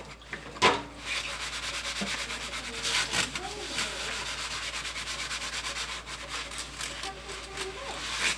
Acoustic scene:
kitchen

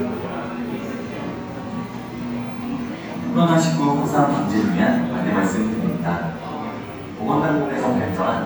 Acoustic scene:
cafe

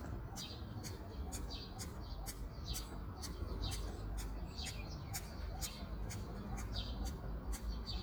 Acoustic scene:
park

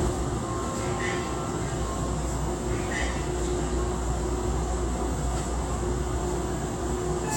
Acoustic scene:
subway train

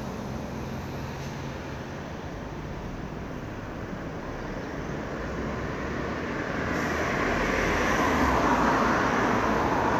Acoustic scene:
street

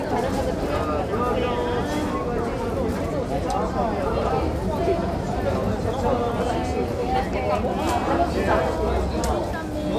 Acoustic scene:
crowded indoor space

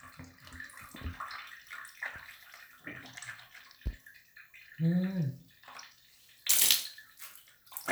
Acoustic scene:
restroom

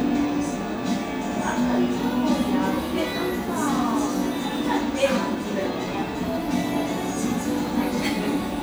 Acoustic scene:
cafe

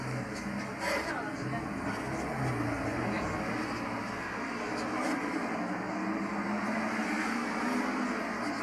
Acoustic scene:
bus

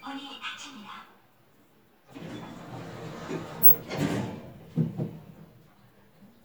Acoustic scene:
elevator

